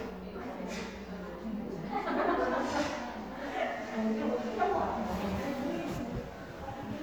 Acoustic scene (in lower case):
cafe